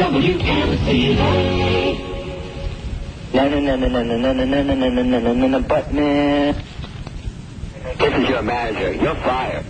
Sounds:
Music, Radio, Speech

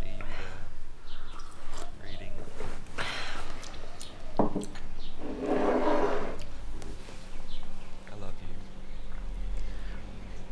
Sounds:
Speech, inside a small room

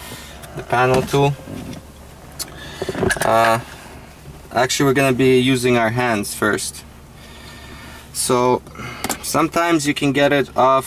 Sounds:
Speech

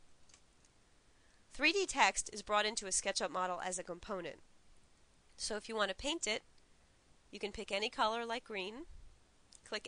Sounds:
monologue

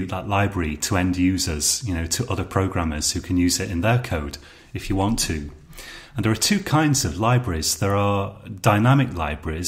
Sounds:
Speech

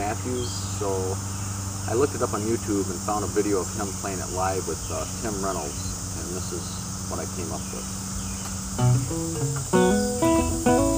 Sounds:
Musical instrument, outside, rural or natural, Music, Guitar, Plucked string instrument, Speech

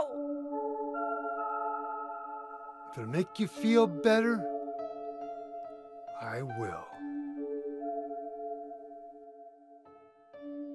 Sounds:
Music, Speech

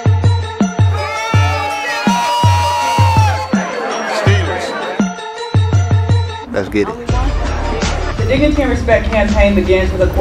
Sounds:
Speech, Music

